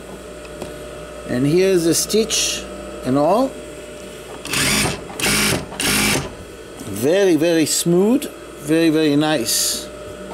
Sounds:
sewing machine
inside a small room
speech

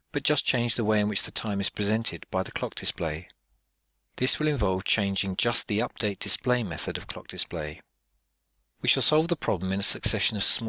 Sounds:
speech

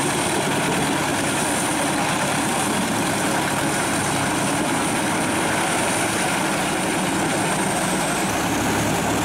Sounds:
heavy engine (low frequency)
vehicle

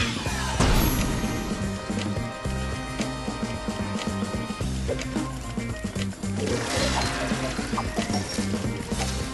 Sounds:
music

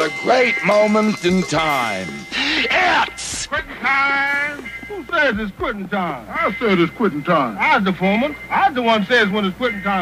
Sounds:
speech

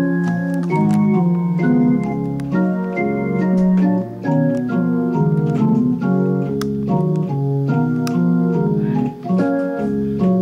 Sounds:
music

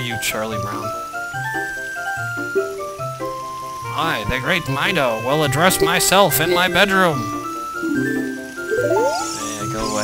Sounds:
music
speech

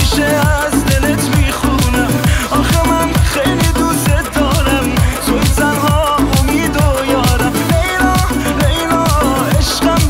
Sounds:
afrobeat
music

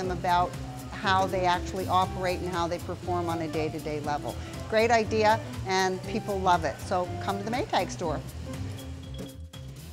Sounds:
speech
music

